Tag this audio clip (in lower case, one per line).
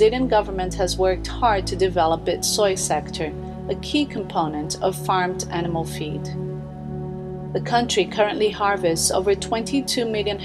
speech
music